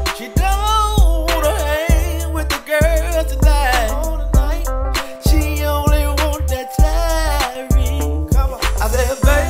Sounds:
Music

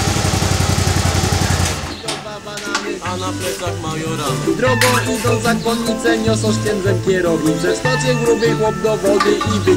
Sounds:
Music

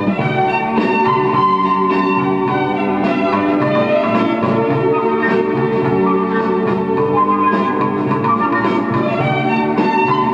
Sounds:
Steelpan, Music

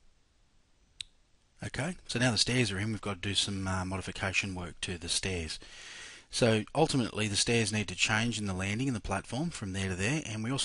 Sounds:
Speech, Clicking

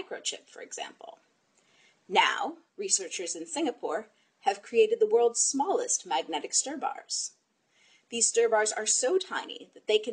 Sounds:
Speech

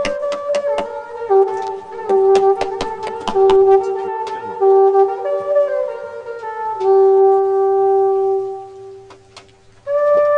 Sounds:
Music, Trumpet, woodwind instrument

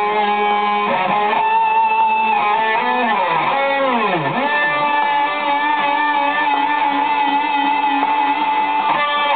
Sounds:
Strum, Music, Musical instrument, Plucked string instrument, Guitar, Acoustic guitar

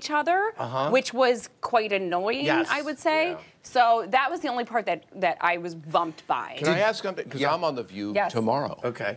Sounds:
Speech

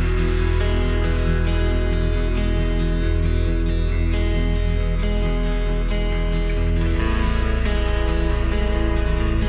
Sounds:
Music

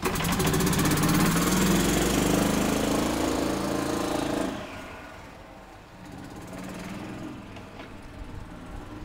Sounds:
Car, Vehicle

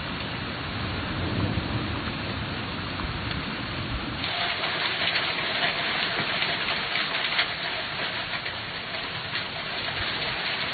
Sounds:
Thunderstorm

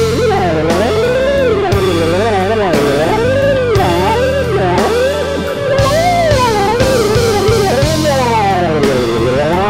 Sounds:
Musical instrument, Music

